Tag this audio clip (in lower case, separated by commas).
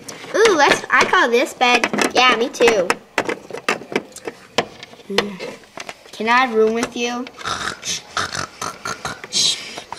speech